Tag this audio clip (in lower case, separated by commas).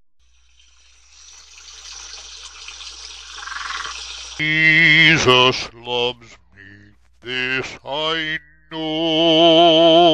animal, speech, frog